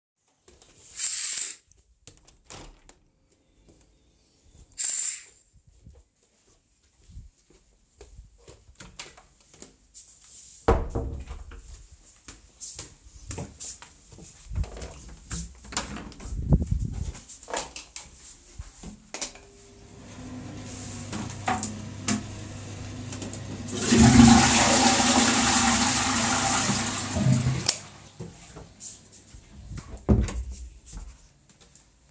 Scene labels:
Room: living room; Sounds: window, footsteps, door (more than once), toilet flushing, light switch

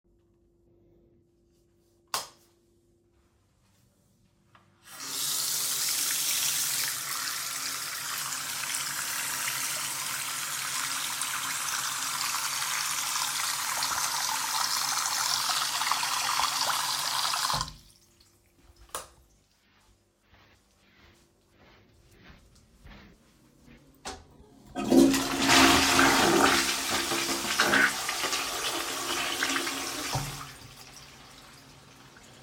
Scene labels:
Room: bathroom; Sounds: light switch, running water, toilet flushing

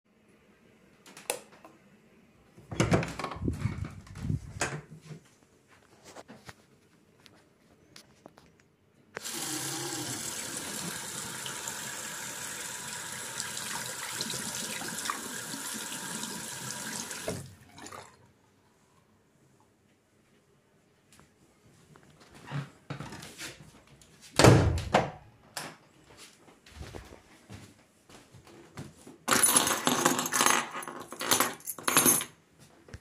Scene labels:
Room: bathroom, hallway; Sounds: light switch, door (more than once), running water, footsteps, keys

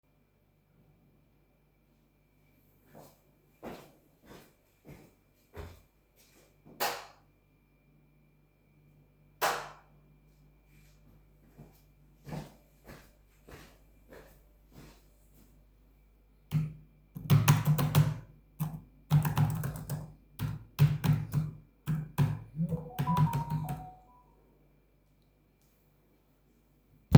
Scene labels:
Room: kitchen; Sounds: footsteps, light switch, keyboard typing, phone ringing

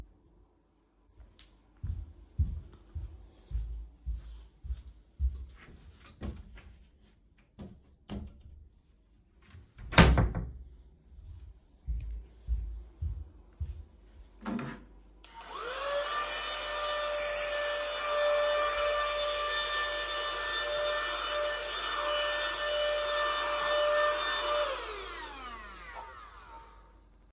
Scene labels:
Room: bedroom; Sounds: footsteps, wardrobe or drawer (more than once), vacuum cleaner

